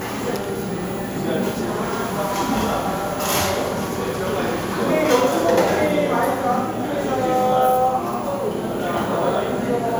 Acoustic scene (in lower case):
cafe